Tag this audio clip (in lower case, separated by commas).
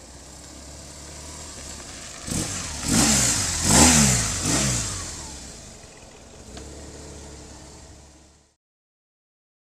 motorcycle, vehicle